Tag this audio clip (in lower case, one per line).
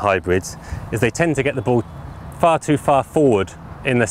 speech